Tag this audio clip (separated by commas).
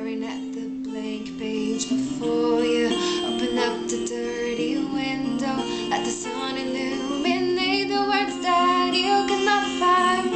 Female singing, Music